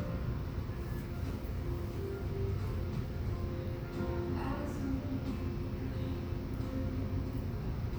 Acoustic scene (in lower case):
cafe